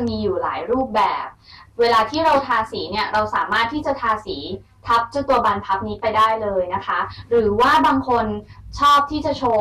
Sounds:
speech

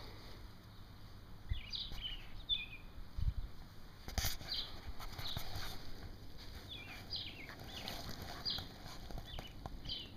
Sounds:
bird, outside, rural or natural

